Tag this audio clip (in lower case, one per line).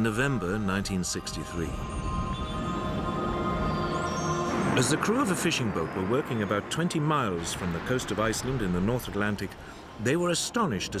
speech
music